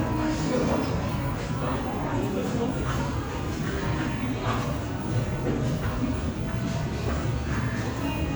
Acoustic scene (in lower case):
cafe